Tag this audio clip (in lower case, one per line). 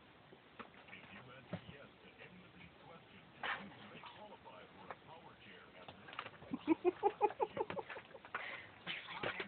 speech